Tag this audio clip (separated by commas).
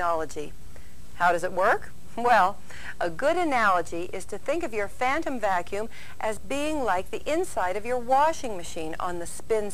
Speech